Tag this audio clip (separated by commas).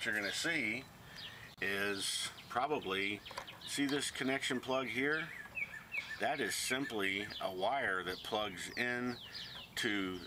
Speech